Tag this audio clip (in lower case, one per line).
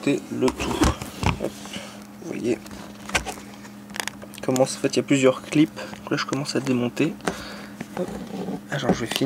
speech